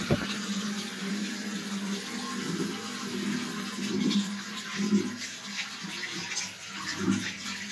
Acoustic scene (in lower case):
restroom